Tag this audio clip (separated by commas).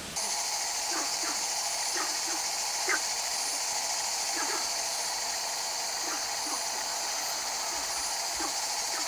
Insect